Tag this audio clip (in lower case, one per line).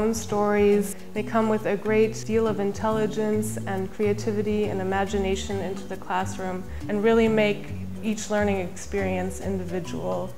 woman speaking